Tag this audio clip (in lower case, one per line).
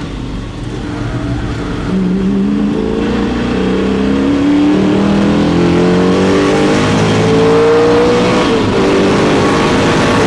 car passing by
vehicle
car
motor vehicle (road)